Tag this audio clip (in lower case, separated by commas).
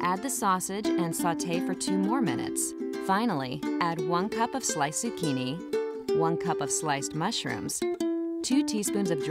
music, speech